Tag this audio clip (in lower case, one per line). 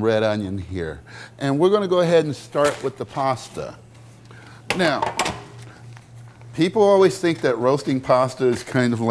speech